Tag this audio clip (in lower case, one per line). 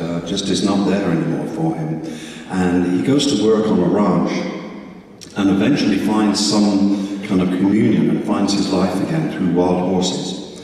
speech